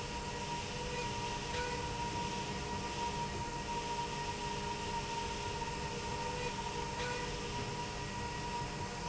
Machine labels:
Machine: slide rail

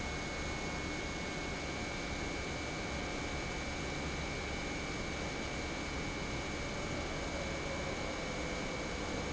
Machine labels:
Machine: pump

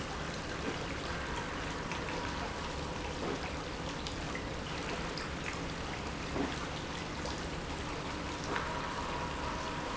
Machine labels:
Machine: pump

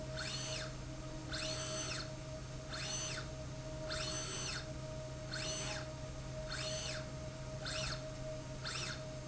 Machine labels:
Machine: slide rail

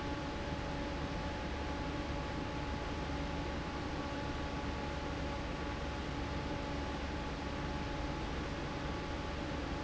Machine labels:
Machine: fan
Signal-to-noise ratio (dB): -6 dB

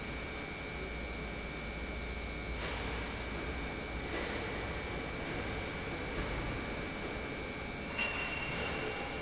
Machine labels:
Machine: pump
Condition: normal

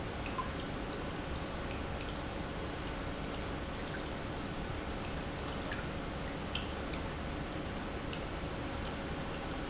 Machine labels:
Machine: pump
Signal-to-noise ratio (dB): -6 dB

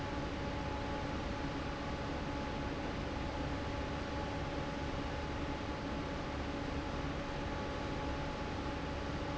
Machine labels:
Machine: fan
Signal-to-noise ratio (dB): -6 dB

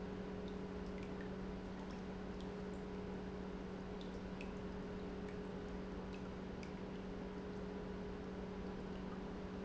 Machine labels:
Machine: pump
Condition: normal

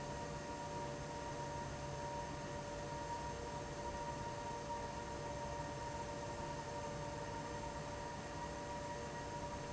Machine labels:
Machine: fan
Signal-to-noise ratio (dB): 0 dB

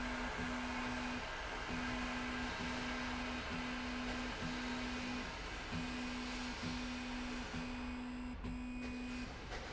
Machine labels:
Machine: slide rail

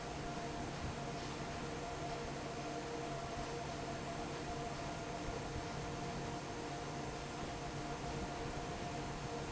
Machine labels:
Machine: fan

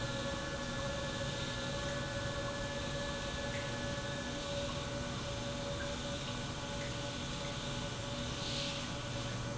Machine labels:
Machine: pump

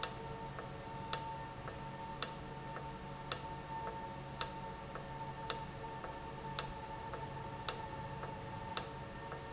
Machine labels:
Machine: valve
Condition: normal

